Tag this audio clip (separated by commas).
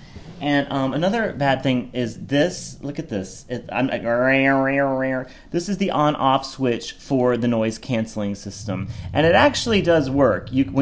Speech